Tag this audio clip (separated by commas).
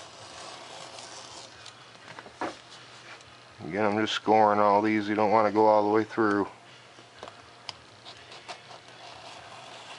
Speech, inside a small room